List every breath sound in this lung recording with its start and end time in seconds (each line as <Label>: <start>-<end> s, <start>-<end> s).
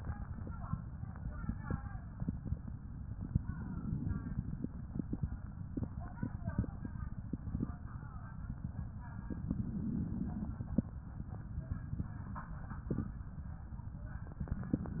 Inhalation: 3.50-5.20 s, 9.21-10.91 s, 14.34-15.00 s